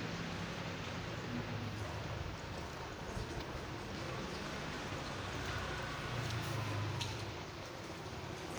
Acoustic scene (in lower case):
residential area